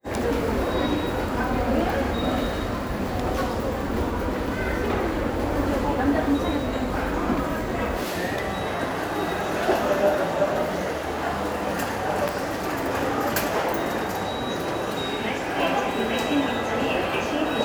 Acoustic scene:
subway station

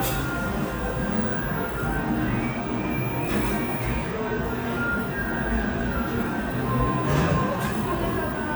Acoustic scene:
cafe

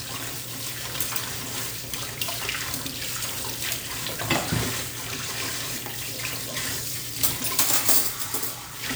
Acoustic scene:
kitchen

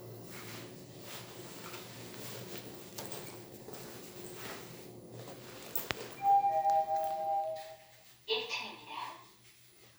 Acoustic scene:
elevator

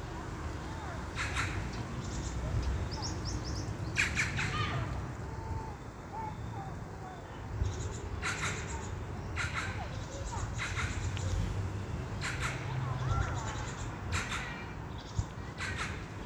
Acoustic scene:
park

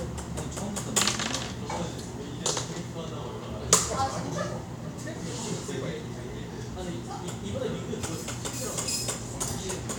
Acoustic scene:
cafe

